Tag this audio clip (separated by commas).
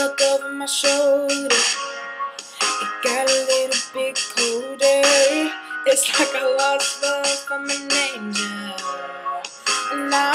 Male singing, Music